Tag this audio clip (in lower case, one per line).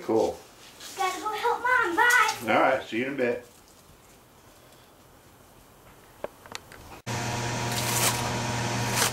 speech
inside a small room